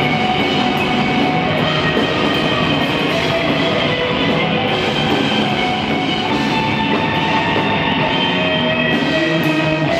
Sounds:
Music, Sound effect

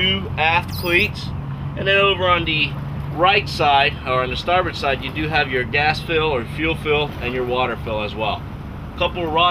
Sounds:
Speech

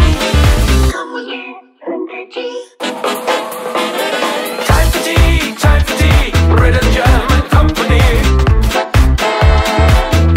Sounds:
Music, Disco

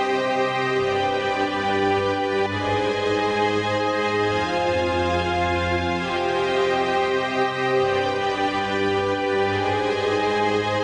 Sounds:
Music

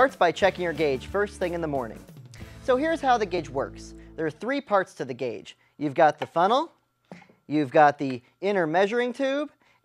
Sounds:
Music, Speech

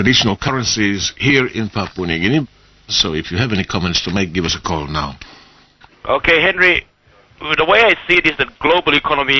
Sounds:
Speech

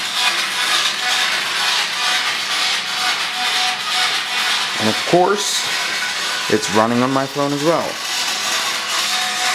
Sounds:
Speech, Music

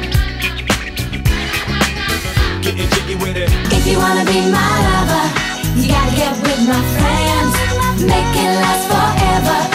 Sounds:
Music

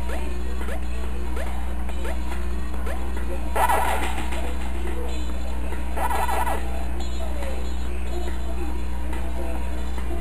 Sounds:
Music

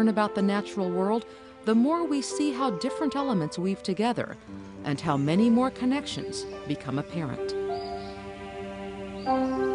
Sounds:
Speech, Music

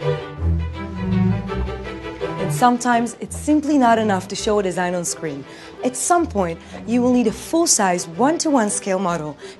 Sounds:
Speech, Music

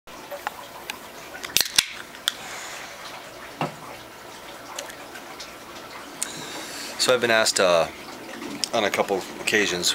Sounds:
Water, faucet, Sink (filling or washing)

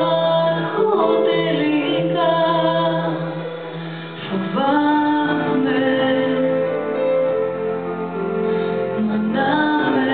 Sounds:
Female singing, Music

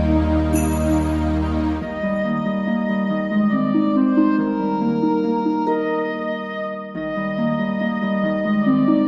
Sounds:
Christmas music, Christian music, Background music, Music

